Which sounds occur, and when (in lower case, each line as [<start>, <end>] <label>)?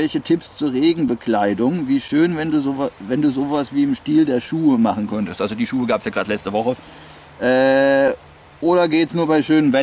[0.00, 9.82] wind
[0.01, 2.87] male speech
[2.90, 9.82] motor vehicle (road)
[3.00, 6.74] male speech
[6.79, 7.34] breathing
[7.38, 8.13] male speech
[8.61, 9.82] male speech